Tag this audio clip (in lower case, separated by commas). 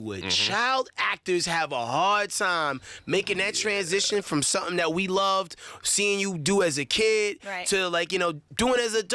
speech